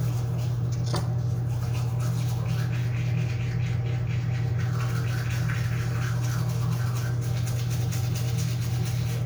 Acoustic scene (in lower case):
restroom